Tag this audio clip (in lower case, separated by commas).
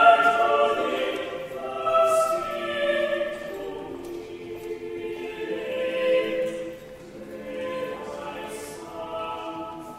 choir, opera